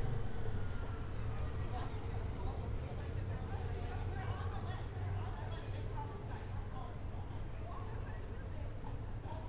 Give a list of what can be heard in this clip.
engine of unclear size, person or small group talking